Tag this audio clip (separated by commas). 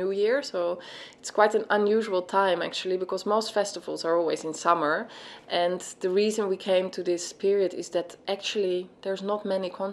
Speech